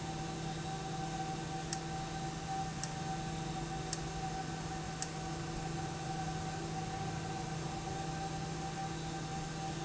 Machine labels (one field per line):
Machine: valve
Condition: abnormal